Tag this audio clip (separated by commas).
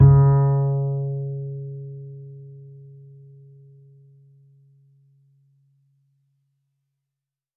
Bowed string instrument, Musical instrument, Music